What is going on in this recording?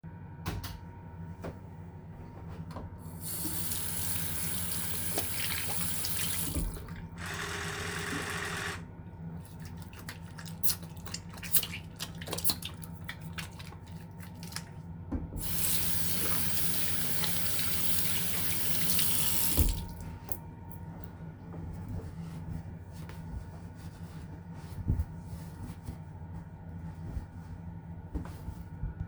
I flipped the light switch and started washing my hands with soap from the dispenser. After that I dried my hads with a towel.